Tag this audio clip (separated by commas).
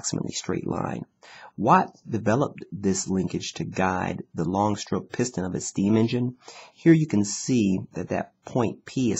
Speech